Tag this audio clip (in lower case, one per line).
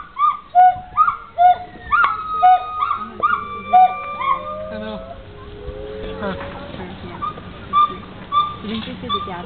speech